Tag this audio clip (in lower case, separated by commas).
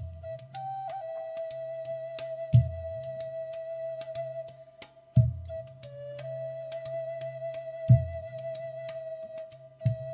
soul music, music, flute, soundtrack music